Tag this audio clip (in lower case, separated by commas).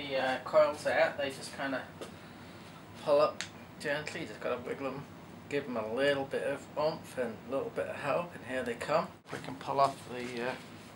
speech